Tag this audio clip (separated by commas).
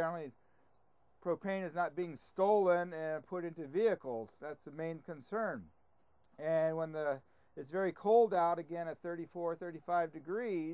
Speech